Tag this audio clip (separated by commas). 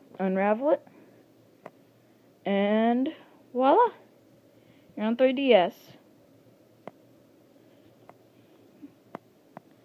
Speech, inside a small room